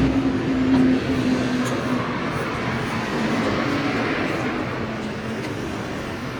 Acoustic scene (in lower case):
street